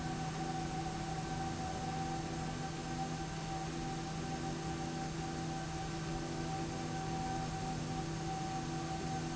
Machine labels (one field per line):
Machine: slide rail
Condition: normal